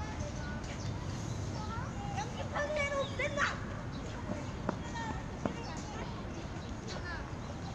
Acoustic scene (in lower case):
park